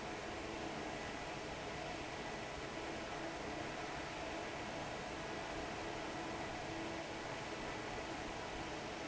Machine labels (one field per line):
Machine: fan